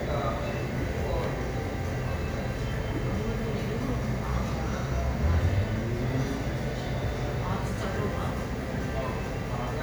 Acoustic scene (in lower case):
crowded indoor space